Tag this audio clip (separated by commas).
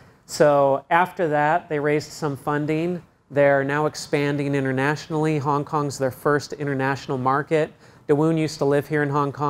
Speech